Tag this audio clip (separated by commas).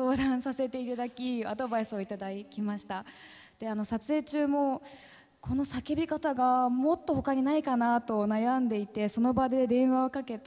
people battle cry